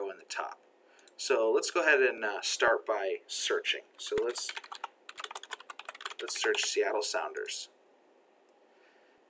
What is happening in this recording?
A man is speaking and typing on a computer keyboard